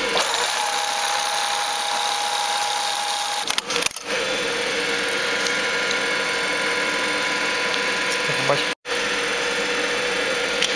A sewing machine is being used in an articulate way